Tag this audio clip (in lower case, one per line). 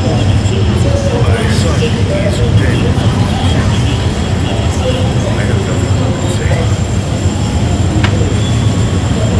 speech